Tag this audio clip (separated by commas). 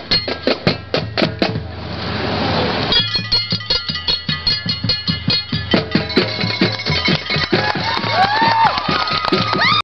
Mallet percussion